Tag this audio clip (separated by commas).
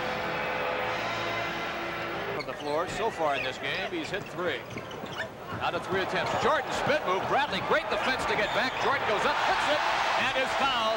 basketball bounce